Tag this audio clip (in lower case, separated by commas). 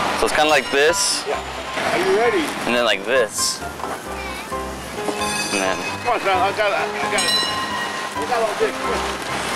music, speech